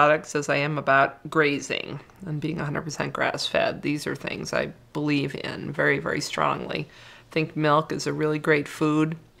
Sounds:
speech

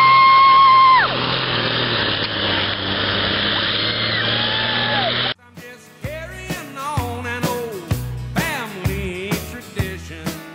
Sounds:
truck, music, vehicle

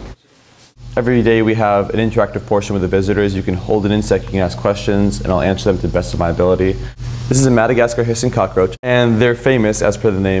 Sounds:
speech

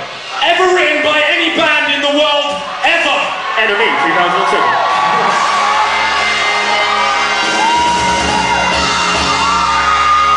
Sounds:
music, speech

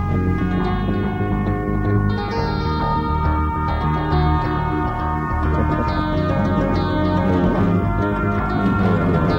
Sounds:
music

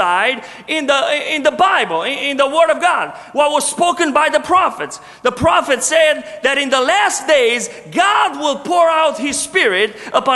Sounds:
speech

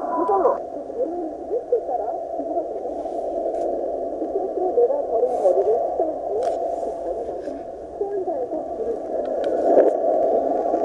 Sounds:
speech

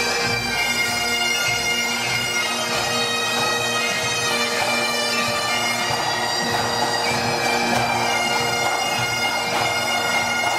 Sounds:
playing bagpipes

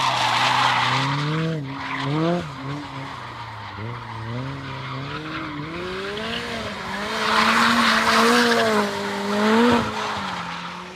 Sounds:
car, vehicle, revving

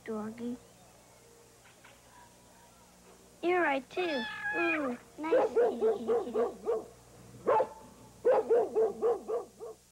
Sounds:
speech, bow-wow

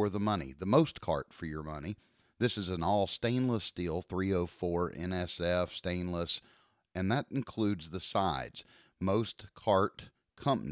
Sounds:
speech

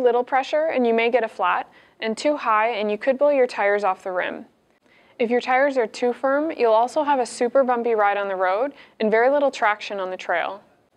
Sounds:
speech

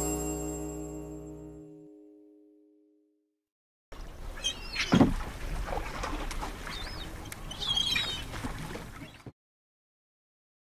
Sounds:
music, bird

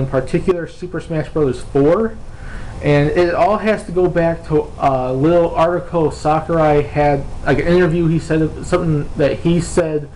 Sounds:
speech

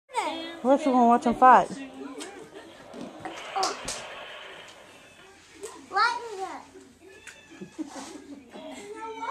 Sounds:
speech, caterwaul, kid speaking

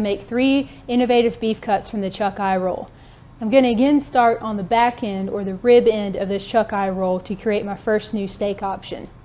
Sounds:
speech

